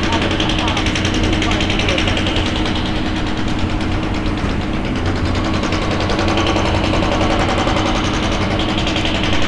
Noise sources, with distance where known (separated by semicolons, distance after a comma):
hoe ram, near